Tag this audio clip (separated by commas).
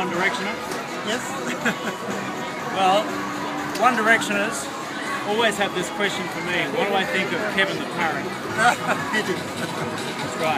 Speech, Music